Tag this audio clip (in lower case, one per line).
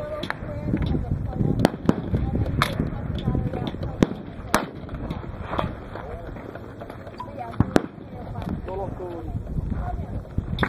firing cannon